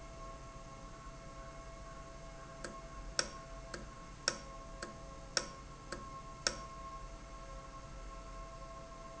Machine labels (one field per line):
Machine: valve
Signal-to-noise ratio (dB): 6 dB